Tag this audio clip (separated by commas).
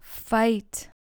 Female speech, Speech, Human voice